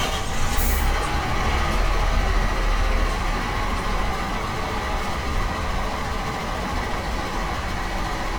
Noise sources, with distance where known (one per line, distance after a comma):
large-sounding engine, near